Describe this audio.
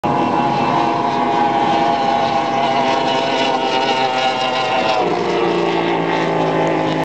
A large engine roars as it passes